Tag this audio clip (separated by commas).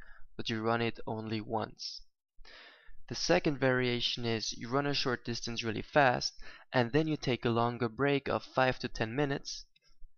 Speech